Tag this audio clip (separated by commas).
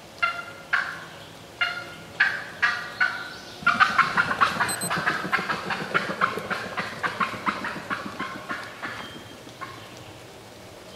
turkey gobbling